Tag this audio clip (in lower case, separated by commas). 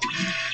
mechanisms, printer